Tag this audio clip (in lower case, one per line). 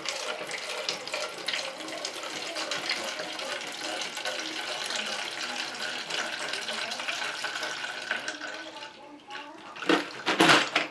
speech
inside a small room